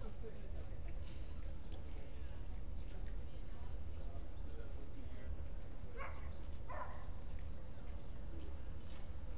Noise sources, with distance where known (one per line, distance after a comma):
person or small group talking, far
dog barking or whining, far